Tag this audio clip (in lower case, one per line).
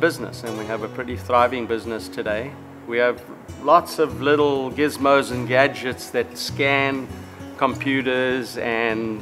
music
speech